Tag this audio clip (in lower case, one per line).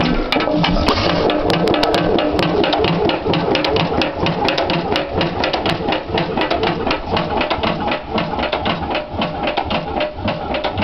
idling
engine
medium engine (mid frequency)